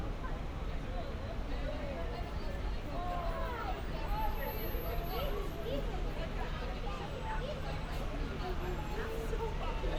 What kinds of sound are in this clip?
person or small group talking